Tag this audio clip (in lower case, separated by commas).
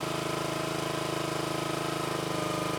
engine